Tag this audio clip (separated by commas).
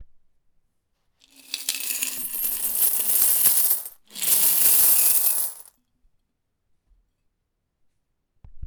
Domestic sounds, Coin (dropping)